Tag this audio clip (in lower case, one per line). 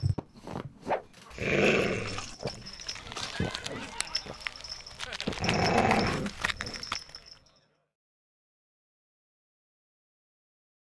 inside a small room